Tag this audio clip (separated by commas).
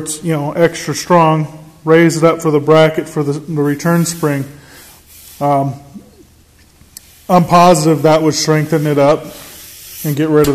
Speech, inside a large room or hall